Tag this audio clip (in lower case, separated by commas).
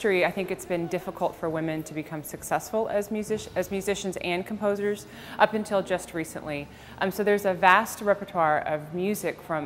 speech